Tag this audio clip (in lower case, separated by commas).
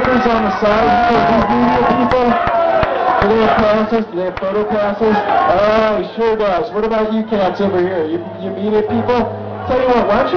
speech, music, crowd